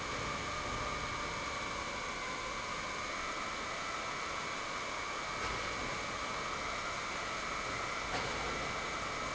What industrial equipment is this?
pump